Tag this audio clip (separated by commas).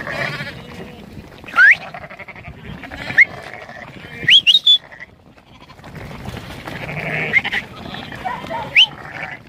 livestock